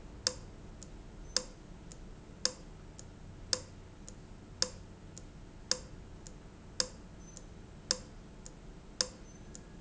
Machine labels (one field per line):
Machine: valve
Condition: abnormal